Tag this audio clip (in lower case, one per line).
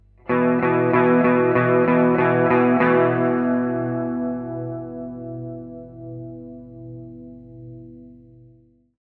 music
plucked string instrument
electric guitar
guitar
musical instrument